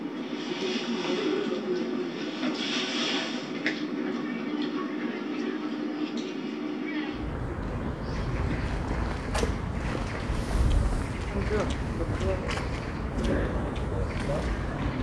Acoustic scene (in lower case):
park